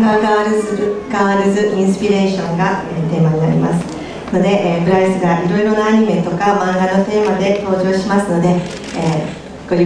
A woman is giving a speech in a foreign language